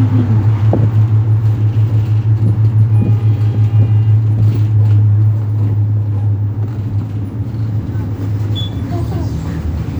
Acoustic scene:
bus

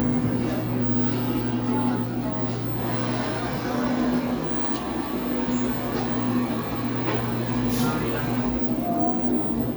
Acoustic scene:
cafe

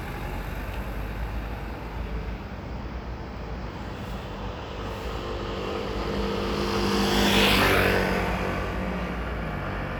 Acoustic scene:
street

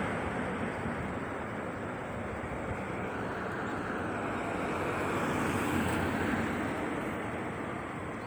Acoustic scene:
street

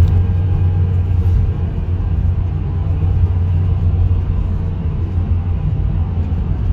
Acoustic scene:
car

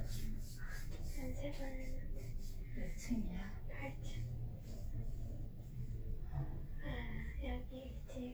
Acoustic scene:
elevator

